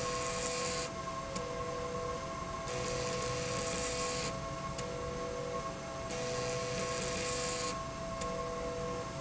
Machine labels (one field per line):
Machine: slide rail